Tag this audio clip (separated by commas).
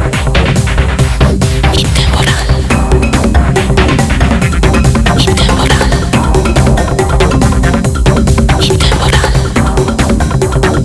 Sound effect, Music, Whispering